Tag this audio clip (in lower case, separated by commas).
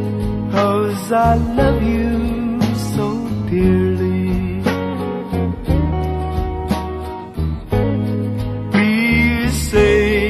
music